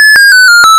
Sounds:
alarm

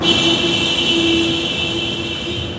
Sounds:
motor vehicle (road)
car
alarm
honking
vehicle

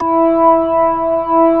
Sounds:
keyboard (musical)
organ
music
musical instrument

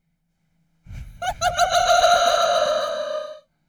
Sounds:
laughter
human voice

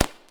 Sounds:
explosion
fireworks

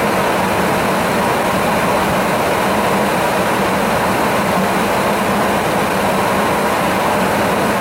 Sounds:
wind

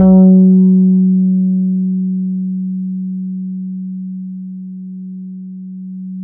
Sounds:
guitar
musical instrument
bass guitar
plucked string instrument
music

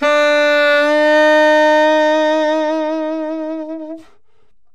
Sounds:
woodwind instrument
music
musical instrument

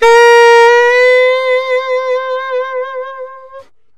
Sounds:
wind instrument
music
musical instrument

